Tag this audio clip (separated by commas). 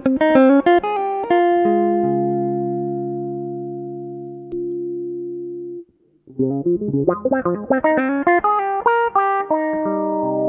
Distortion, Electronic tuner, Musical instrument, Plucked string instrument, Guitar, Electric guitar, Music, Effects unit